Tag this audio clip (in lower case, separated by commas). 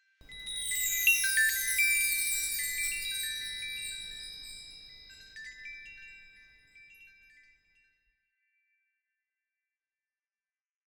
chime, bell